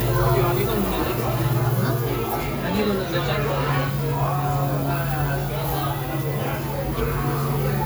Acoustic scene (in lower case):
restaurant